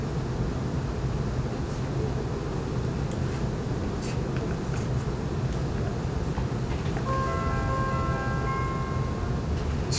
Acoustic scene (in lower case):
subway train